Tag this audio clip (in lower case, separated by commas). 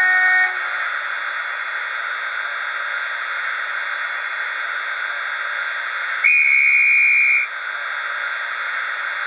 vacuum cleaner